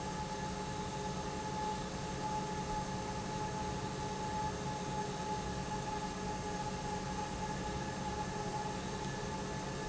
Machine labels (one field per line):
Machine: pump